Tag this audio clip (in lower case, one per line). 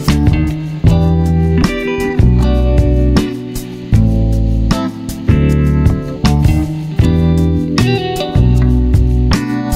music